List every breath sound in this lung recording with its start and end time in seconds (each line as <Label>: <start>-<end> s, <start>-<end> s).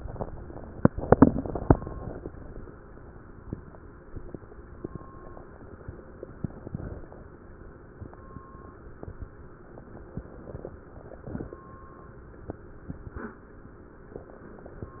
Inhalation: 0.83-1.71 s, 9.84-10.71 s
Exhalation: 1.74-2.62 s, 10.73-11.60 s